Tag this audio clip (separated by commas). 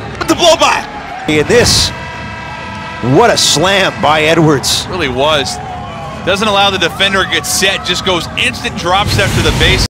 Speech